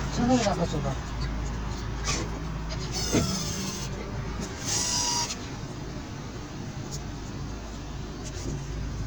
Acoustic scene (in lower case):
car